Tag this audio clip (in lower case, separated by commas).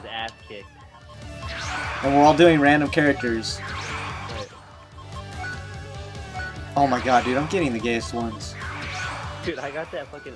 speech, music